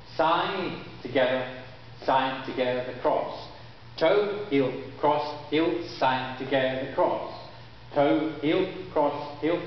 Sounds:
Speech

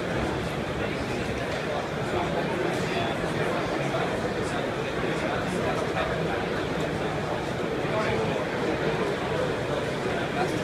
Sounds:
Speech

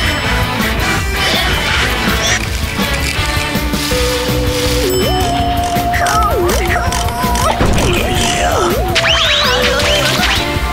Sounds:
Speech, Music

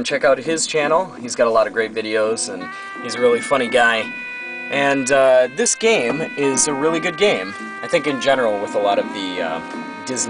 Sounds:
Music, Speech

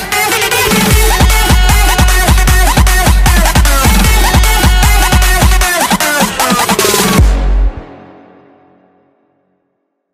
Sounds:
Singing, Music

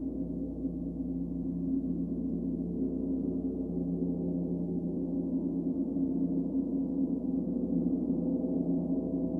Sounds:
Gong

